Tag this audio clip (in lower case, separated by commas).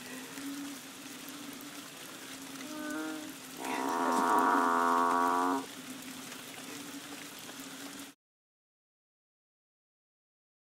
bovinae, livestock